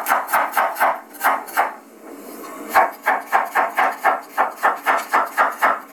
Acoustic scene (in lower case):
kitchen